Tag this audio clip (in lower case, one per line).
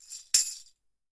music
musical instrument
tambourine
percussion